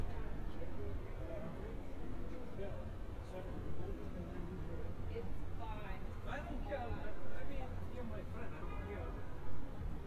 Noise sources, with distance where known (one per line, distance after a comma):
person or small group talking